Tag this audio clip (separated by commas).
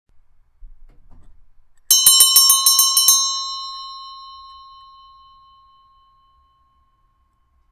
Bell